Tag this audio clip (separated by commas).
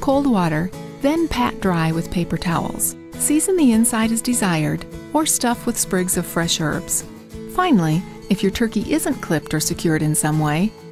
Music, Speech